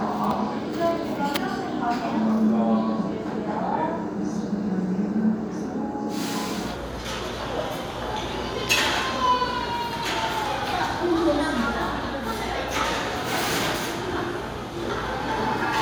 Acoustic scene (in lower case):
restaurant